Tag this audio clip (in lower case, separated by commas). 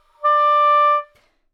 wind instrument, music, musical instrument